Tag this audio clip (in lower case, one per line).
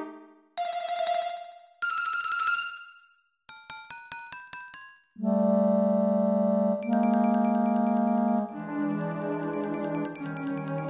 theme music
music